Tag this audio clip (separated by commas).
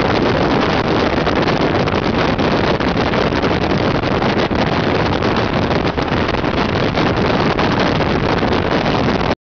Vehicle